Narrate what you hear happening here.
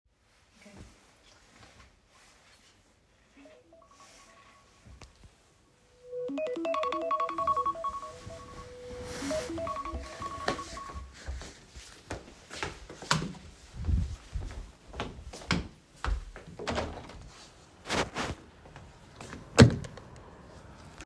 The alarm went off on my phone, I woke up and got off the bed. I turned on the light, and walked to the window and opened it.